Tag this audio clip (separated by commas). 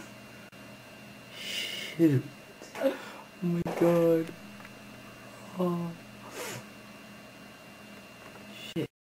Speech